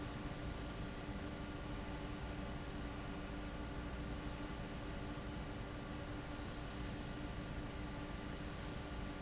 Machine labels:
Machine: fan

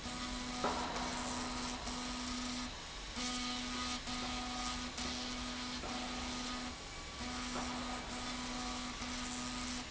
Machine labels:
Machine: slide rail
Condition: abnormal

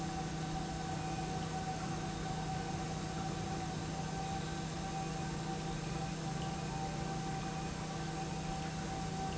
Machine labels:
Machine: pump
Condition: normal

